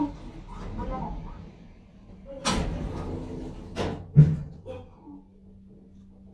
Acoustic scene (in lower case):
elevator